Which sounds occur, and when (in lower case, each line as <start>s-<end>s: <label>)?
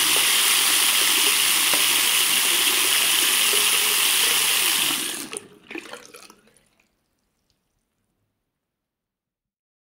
0.0s-7.8s: water tap
6.4s-9.4s: background noise